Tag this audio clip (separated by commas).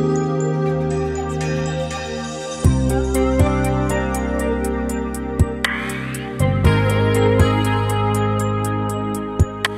Music